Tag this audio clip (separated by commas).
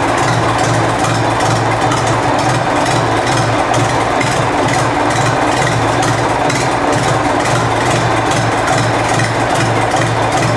Idling, Engine, Heavy engine (low frequency)